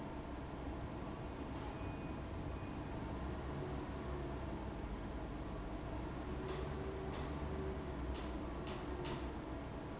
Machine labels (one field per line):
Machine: fan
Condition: abnormal